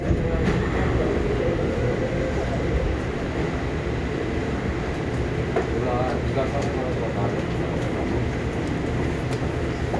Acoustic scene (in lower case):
subway train